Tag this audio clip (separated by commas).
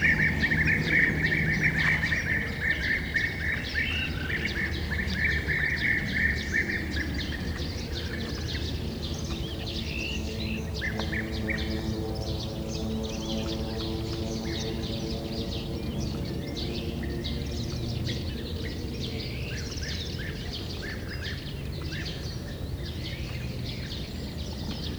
Aircraft, airplane, Vehicle